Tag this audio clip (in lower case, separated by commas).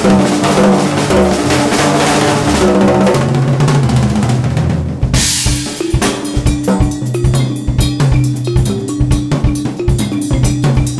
drum, cymbal, hi-hat, bass drum, drum kit, musical instrument, music, rimshot, percussion